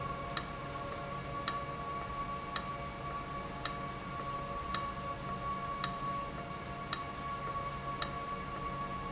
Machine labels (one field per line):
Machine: valve